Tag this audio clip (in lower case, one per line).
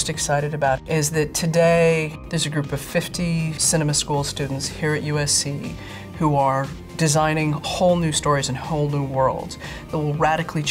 speech
music